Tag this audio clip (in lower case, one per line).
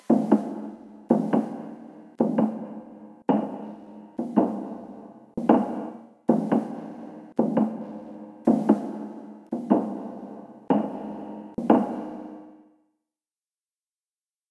thud